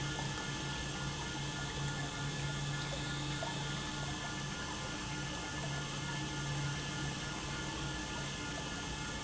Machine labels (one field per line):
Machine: pump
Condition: normal